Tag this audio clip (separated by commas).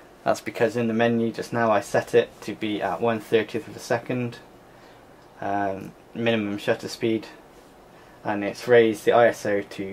Speech